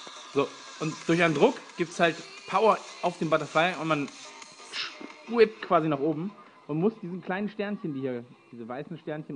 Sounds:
speech, music

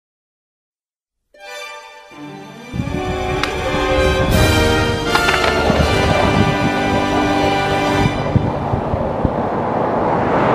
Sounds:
skateboarding

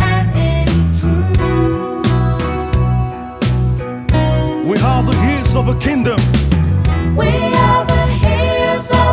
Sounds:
speech, music

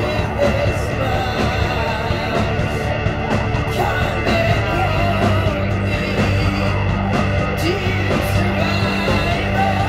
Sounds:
music

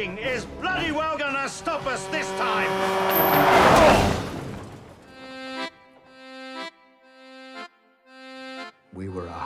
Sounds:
speech, music

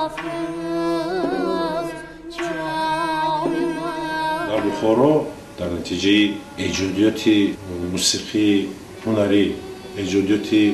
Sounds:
vocal music, speech, music, music of asia, singing, middle eastern music

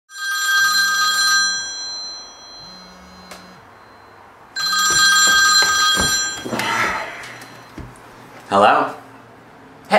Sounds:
speech, inside a small room

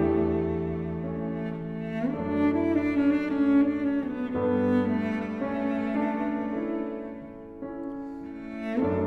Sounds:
playing oboe

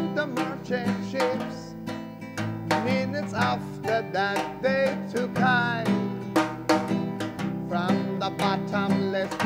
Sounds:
soul music, music

